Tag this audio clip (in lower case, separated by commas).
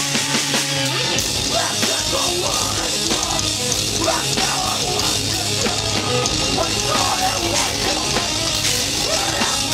music